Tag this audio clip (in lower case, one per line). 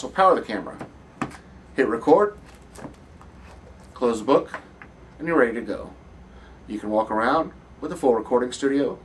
speech